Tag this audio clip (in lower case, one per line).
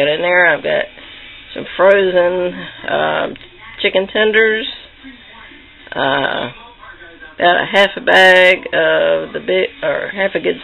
speech